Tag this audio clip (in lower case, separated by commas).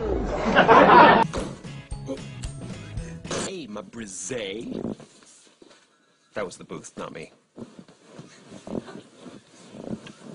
speech, music, inside a small room